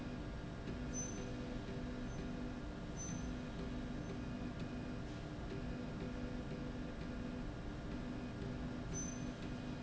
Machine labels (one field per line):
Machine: slide rail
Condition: normal